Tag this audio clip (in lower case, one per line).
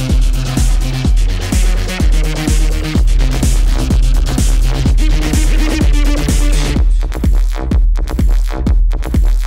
music